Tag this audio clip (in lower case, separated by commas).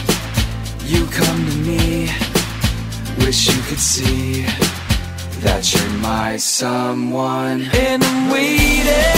music